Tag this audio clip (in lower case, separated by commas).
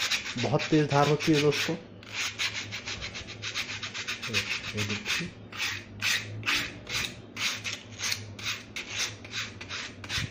sharpen knife